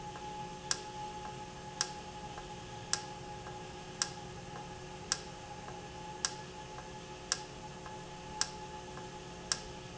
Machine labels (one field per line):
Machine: valve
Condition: normal